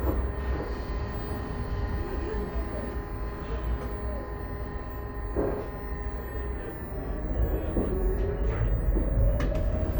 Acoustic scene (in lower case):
bus